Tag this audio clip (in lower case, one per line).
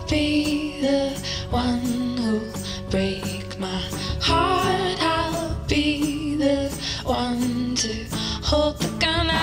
music